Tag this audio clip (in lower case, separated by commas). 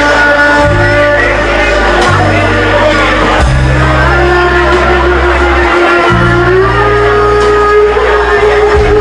music, musical instrument